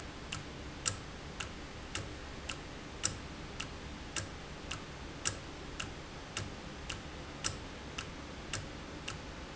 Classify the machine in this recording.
valve